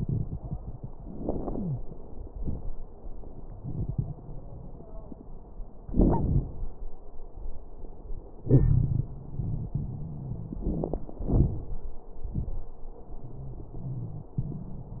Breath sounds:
1.49-1.82 s: wheeze
8.41-9.07 s: wheeze
9.13-11.06 s: wheeze
13.26-14.33 s: wheeze

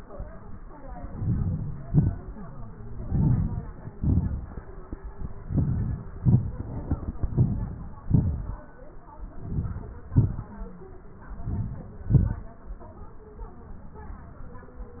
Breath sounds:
1.17-1.78 s: inhalation
1.94-2.40 s: exhalation
3.05-3.55 s: inhalation
3.98-4.46 s: exhalation
5.49-6.13 s: inhalation
6.20-6.64 s: exhalation
7.42-7.87 s: inhalation
8.08-8.59 s: exhalation
9.48-10.05 s: inhalation
10.14-10.56 s: exhalation
11.50-11.93 s: inhalation
12.11-12.55 s: exhalation

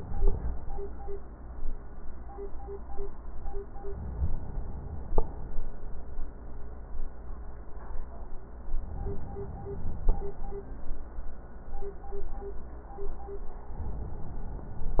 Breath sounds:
3.81-5.14 s: inhalation
8.75-10.08 s: inhalation

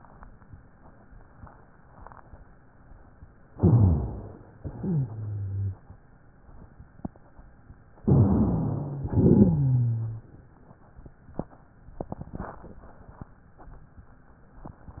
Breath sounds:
3.51-4.58 s: inhalation
3.55-4.48 s: rhonchi
4.60-5.84 s: exhalation
4.74-5.82 s: wheeze
8.01-9.04 s: inhalation
8.03-9.02 s: rhonchi
9.05-10.28 s: exhalation
9.05-10.28 s: wheeze

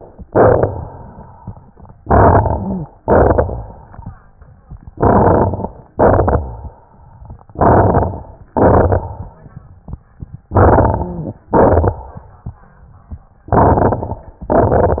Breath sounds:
0.25-1.14 s: crackles
0.25-1.37 s: exhalation
2.01-2.90 s: inhalation
2.01-2.90 s: crackles
3.00-3.99 s: exhalation
3.00-3.99 s: crackles
4.97-5.84 s: inhalation
4.97-5.84 s: crackles
5.96-6.74 s: exhalation
5.96-6.74 s: crackles
7.57-8.35 s: inhalation
7.57-8.35 s: crackles
8.56-9.34 s: exhalation
8.56-9.34 s: crackles
10.53-11.39 s: inhalation
10.53-11.39 s: crackles
11.54-12.28 s: exhalation
11.54-12.28 s: crackles
13.55-14.38 s: inhalation
13.55-14.38 s: crackles
14.51-15.00 s: exhalation
14.51-15.00 s: crackles

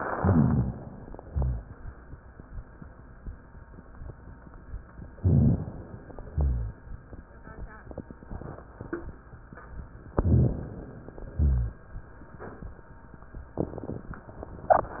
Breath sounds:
0.00-1.29 s: inhalation
0.10-0.77 s: rhonchi
1.29-1.87 s: exhalation
1.31-1.65 s: rhonchi
5.16-5.72 s: rhonchi
5.16-6.29 s: inhalation
6.27-6.83 s: rhonchi
6.29-6.96 s: exhalation
10.18-10.64 s: rhonchi
10.20-11.33 s: inhalation
11.33-11.99 s: exhalation
11.35-11.81 s: rhonchi

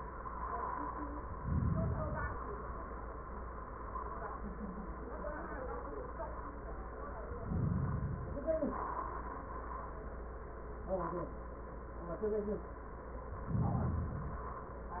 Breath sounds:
1.32-2.87 s: inhalation
7.28-8.41 s: inhalation
13.40-14.72 s: inhalation

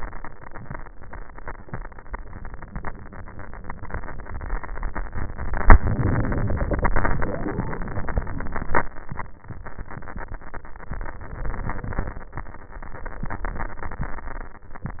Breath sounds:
5.67-7.47 s: inhalation
7.47-8.95 s: exhalation

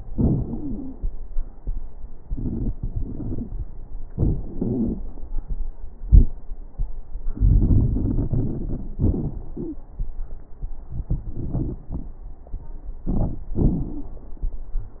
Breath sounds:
0.08-0.96 s: wheeze
7.33-8.98 s: inhalation
7.33-8.98 s: crackles
9.01-9.87 s: exhalation
9.56-9.87 s: wheeze

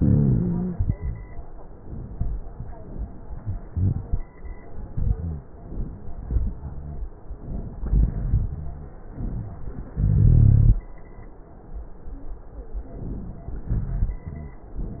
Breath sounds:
0.00-0.74 s: rhonchi
5.10-5.50 s: rhonchi
6.56-7.12 s: rhonchi
7.29-7.80 s: inhalation
7.85-8.63 s: exhalation
7.85-8.63 s: rhonchi
9.12-9.93 s: inhalation
9.98-10.78 s: exhalation
10.02-10.76 s: rhonchi
14.25-14.69 s: rhonchi

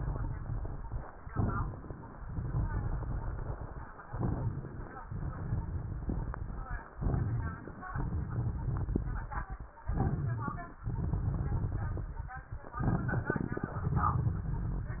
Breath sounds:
0.00-1.05 s: crackles
1.12-2.17 s: inhalation
1.12-2.17 s: crackles
1.18-2.18 s: inhalation
2.20-3.90 s: exhalation
2.20-3.90 s: crackles
4.06-5.07 s: inhalation
4.06-5.07 s: crackles
5.10-6.80 s: exhalation
5.10-6.80 s: crackles
6.93-7.93 s: inhalation
6.93-7.93 s: crackles
7.97-9.59 s: exhalation
7.97-9.59 s: crackles
9.85-10.85 s: inhalation
9.85-10.85 s: crackles
10.81-12.34 s: exhalation
10.89-12.42 s: crackles
12.79-13.79 s: inhalation
12.79-13.79 s: crackles
13.83-15.00 s: exhalation

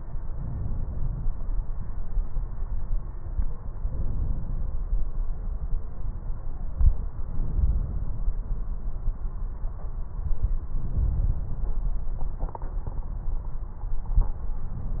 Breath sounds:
0.32-1.27 s: inhalation
3.75-4.71 s: inhalation
7.36-8.31 s: inhalation
10.79-11.75 s: inhalation

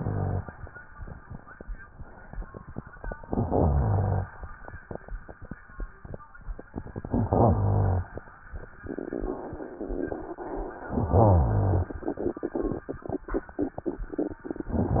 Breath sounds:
0.00-0.46 s: rhonchi
3.26-4.27 s: inhalation
3.26-4.27 s: rhonchi
7.11-8.12 s: inhalation
7.11-8.12 s: rhonchi
11.00-12.01 s: inhalation
11.00-12.01 s: rhonchi

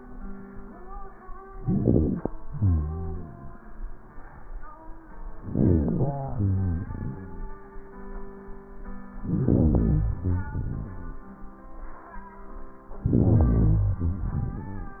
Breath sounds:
1.56-2.41 s: inhalation
2.40-3.58 s: exhalation
5.43-6.20 s: inhalation
6.20-7.58 s: exhalation
9.18-10.19 s: inhalation
10.19-11.37 s: exhalation
12.95-14.20 s: inhalation
14.22-15.00 s: exhalation

